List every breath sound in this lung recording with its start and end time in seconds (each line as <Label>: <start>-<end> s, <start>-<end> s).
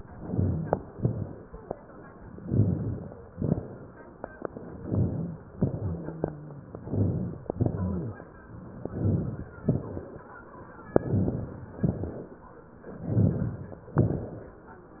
Inhalation: 0.00-0.89 s, 2.37-3.28 s, 4.78-5.56 s, 6.77-7.47 s, 8.80-9.57 s, 10.92-11.78 s, 12.83-13.92 s
Exhalation: 0.94-1.75 s, 3.33-4.24 s, 5.57-6.65 s, 7.54-8.24 s, 9.62-10.40 s, 11.80-12.56 s, 13.94-14.89 s
Wheeze: 5.83-6.65 s, 7.54-8.24 s
Crackles: 0.00-0.89 s, 0.94-1.75 s, 2.37-3.28 s, 3.33-4.24 s, 4.78-5.56 s, 5.57-6.65 s, 6.77-7.47 s, 7.54-8.24 s, 8.80-9.57 s, 9.62-10.40 s, 10.92-11.78 s, 11.80-12.56 s, 12.83-13.92 s, 13.94-14.89 s